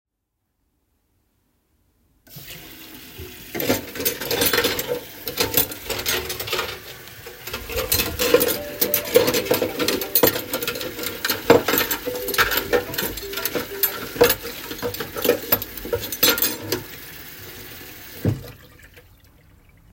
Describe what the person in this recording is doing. I turned on running water at the sink and handled dishes and cutlery nearby. During both of these sounds, a phone rang so that all three target events overlapped.